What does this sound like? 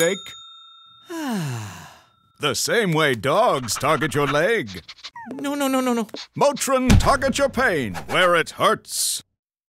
Bell then two male speaking